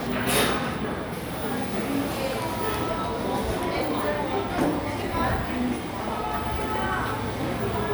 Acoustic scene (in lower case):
cafe